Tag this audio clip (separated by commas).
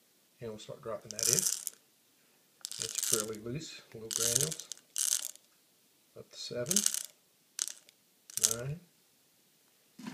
Speech, inside a small room